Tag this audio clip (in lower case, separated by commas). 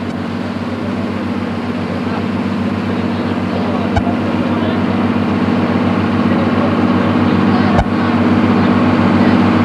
ship, vehicle, outside, rural or natural